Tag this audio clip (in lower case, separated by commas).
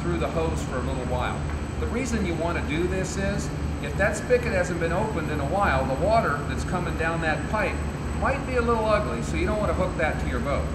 speech